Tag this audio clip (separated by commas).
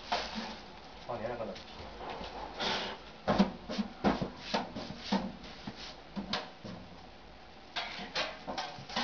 Speech